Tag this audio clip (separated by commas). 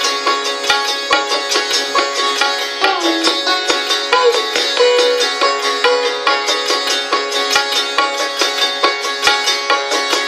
playing sitar